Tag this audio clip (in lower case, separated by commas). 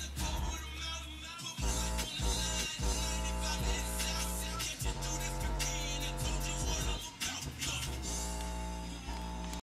music, sound effect